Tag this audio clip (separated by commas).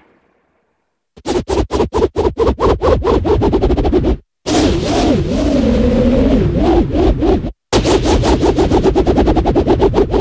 Sound effect